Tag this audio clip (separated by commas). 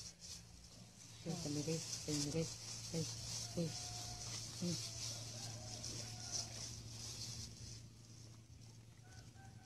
Speech, Animal